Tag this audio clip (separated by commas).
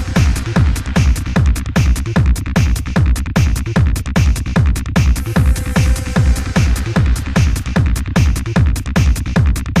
Music, Techno